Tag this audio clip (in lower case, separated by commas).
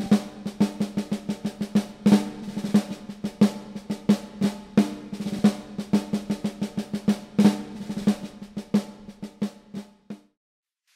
drum kit, drum roll, snare drum, drum